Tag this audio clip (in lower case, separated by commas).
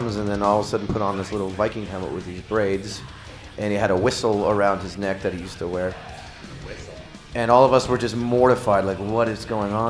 music, speech